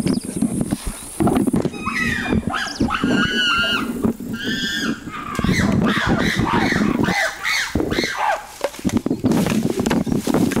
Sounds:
chimpanzee pant-hooting

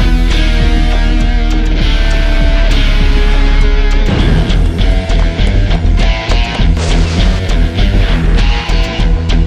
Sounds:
scary music, music

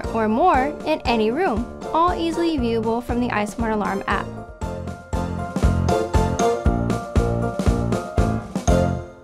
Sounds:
speech, music

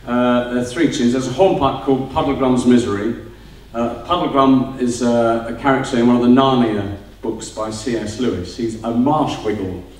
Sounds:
speech

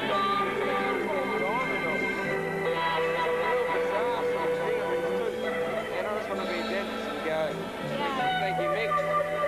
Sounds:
speech, music

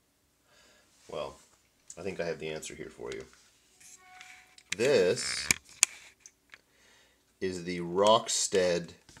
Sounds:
speech, inside a small room

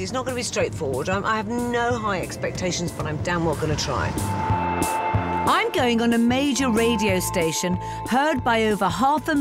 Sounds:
music, speech

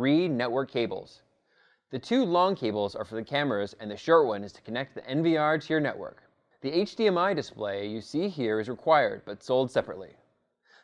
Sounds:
speech

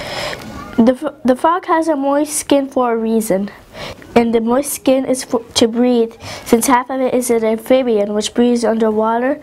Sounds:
speech

